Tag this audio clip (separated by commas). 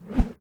swoosh